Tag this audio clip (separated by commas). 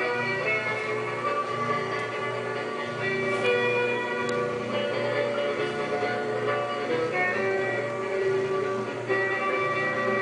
Music